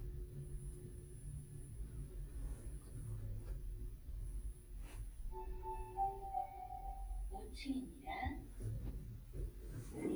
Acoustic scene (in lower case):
elevator